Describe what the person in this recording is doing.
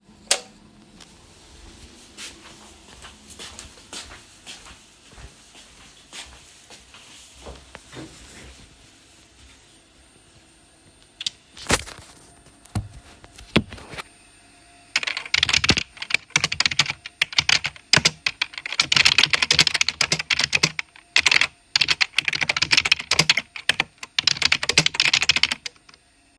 I switched on the light, walked to my seat. I sat down and accidentally moved my chair, then placed my phone on the desk. Finally I started to type on the keyboard.